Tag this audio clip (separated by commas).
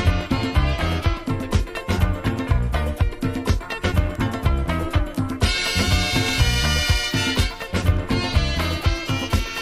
Music